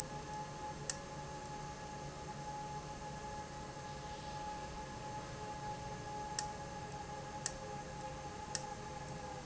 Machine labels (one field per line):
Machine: valve